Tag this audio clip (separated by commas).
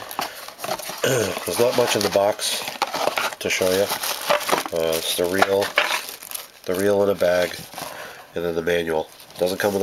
inside a small room, Speech